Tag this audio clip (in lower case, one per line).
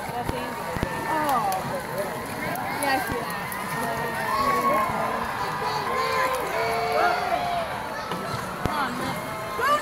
speech
rowboat